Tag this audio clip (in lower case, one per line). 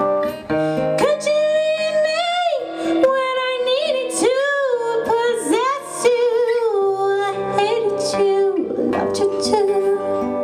strum
plucked string instrument
acoustic guitar
guitar
electric guitar
music
musical instrument